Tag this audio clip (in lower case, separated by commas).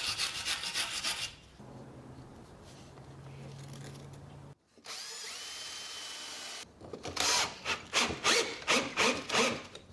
rub, wood